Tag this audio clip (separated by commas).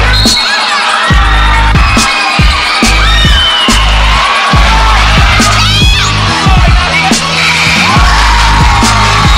Music